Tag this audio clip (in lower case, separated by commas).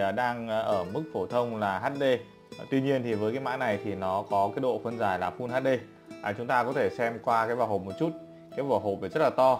speech, music